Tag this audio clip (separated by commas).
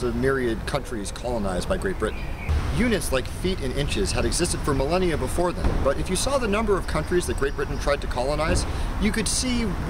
Speech